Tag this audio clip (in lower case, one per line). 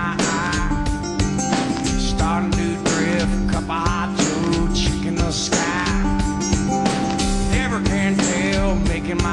music